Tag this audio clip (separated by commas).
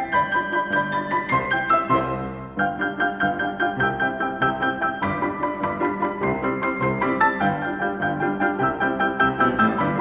Music